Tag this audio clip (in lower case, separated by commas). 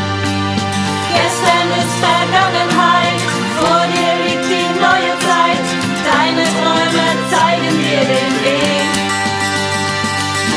plucked string instrument, singing, musical instrument, guitar, music